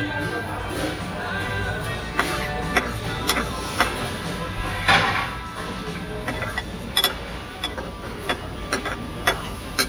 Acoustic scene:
restaurant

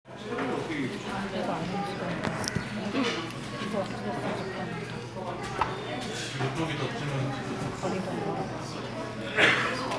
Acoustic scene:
crowded indoor space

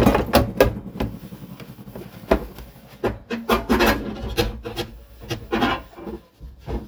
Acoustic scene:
kitchen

